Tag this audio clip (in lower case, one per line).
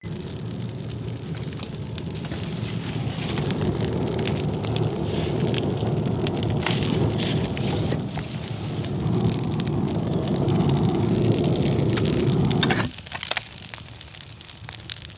fire